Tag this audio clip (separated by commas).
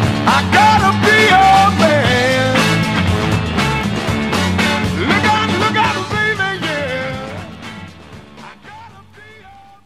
Music